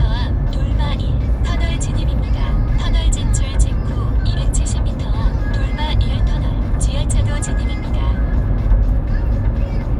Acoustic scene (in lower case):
car